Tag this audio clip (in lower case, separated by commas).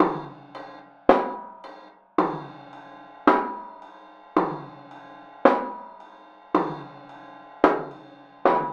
music, musical instrument, percussion, drum, snare drum